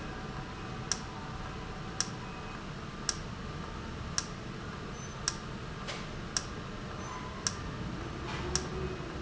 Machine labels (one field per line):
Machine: valve